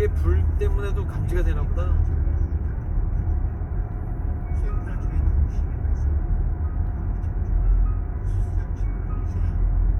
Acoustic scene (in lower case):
car